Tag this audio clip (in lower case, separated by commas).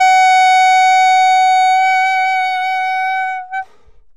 wind instrument, music, musical instrument